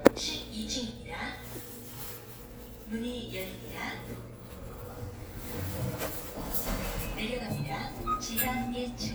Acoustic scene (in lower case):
elevator